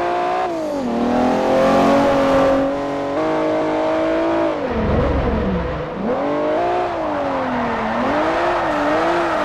Sports car acceleration and braking